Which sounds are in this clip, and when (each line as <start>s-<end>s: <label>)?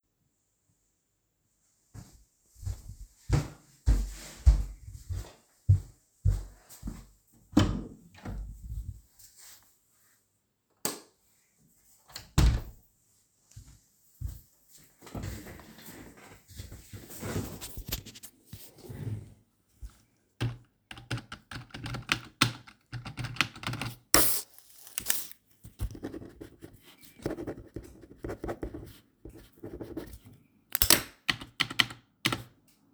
1.7s-7.3s: footsteps
7.2s-9.6s: door
10.5s-11.3s: light switch
11.7s-13.2s: door
13.3s-15.1s: footsteps
20.2s-24.3s: keyboard typing
30.9s-32.9s: keyboard typing